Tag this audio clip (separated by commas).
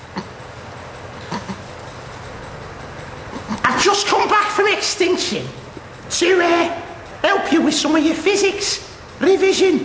Speech